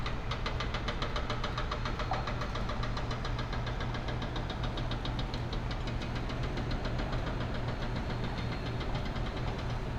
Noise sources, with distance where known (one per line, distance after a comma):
hoe ram